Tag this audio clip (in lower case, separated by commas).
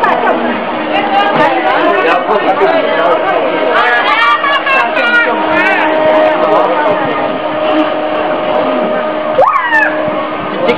speech, speedboat